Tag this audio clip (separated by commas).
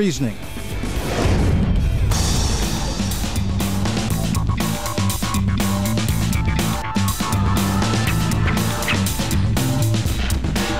Music, Speech